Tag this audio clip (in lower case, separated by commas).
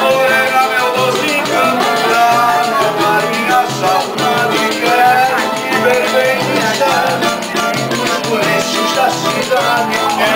speech, music